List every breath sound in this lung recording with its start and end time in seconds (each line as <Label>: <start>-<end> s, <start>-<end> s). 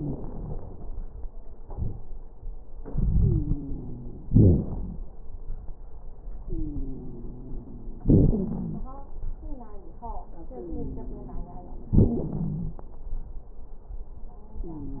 Inhalation: 0.00-1.29 s, 2.81-4.28 s, 6.45-8.06 s, 10.50-11.93 s
Exhalation: 1.62-2.04 s, 4.29-5.07 s, 8.06-8.93 s, 11.97-12.84 s
Wheeze: 3.14-4.28 s, 6.45-8.06 s, 10.50-11.93 s, 14.66-15.00 s
Crackles: 0.00-1.29 s, 1.62-2.04 s, 4.29-5.07 s, 8.06-8.93 s, 11.97-12.84 s